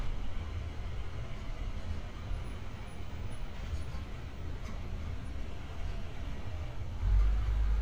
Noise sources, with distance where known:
medium-sounding engine, far

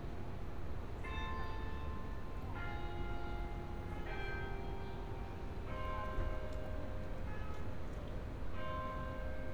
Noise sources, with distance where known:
background noise

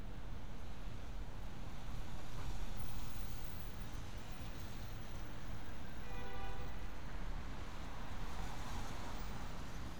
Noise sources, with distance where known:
car horn, far

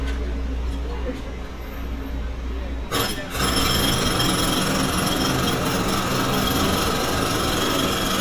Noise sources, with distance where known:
unidentified impact machinery

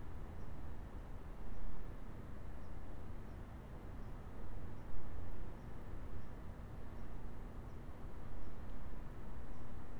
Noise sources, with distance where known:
background noise

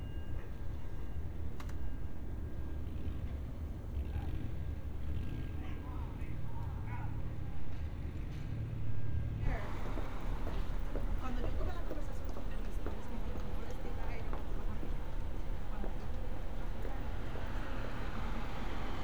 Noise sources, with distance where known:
medium-sounding engine, far; person or small group talking

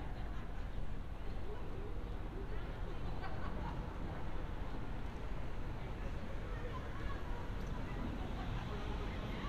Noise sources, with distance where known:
medium-sounding engine, far; person or small group talking, far

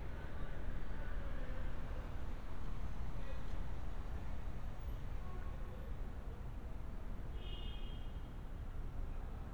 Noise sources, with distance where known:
car horn; person or small group talking, far

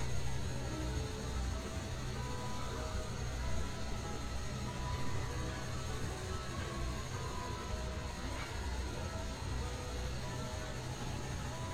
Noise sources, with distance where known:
ice cream truck

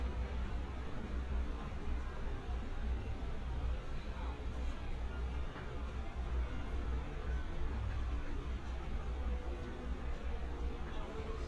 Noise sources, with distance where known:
person or small group talking, far

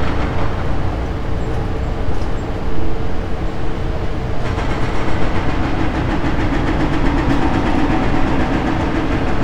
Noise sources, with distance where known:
unidentified impact machinery, near

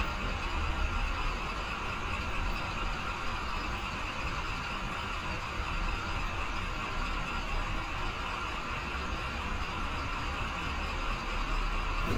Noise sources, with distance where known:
large-sounding engine, near

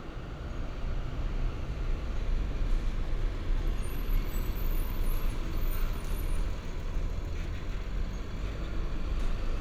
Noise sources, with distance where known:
engine of unclear size

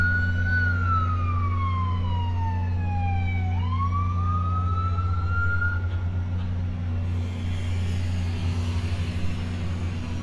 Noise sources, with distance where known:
siren, near

